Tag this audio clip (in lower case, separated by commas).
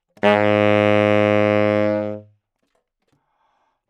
musical instrument, music, woodwind instrument